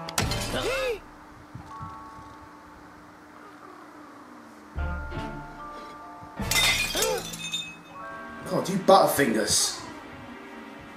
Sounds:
inside a small room, speech, music

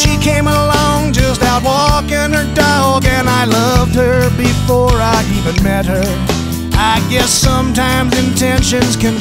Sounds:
music

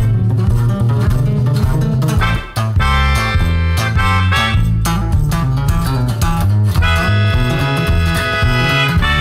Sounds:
guitar, musical instrument, music

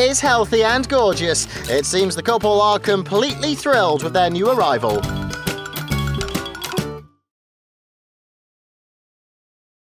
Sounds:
music, speech

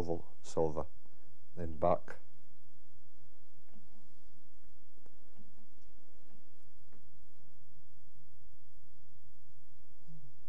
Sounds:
speech

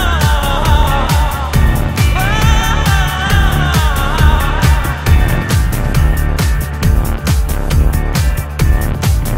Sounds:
music

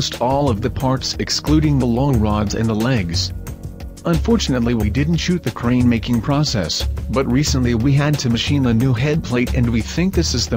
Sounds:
music, speech

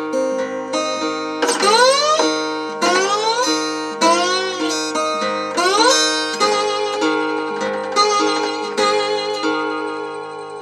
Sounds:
slide guitar

